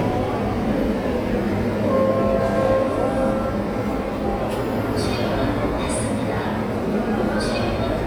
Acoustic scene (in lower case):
subway train